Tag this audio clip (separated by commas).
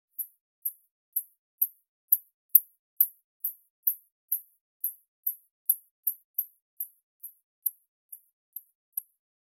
Animal